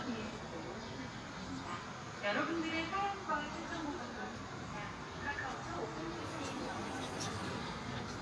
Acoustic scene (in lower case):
park